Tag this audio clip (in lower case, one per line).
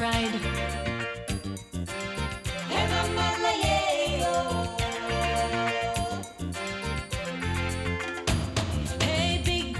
music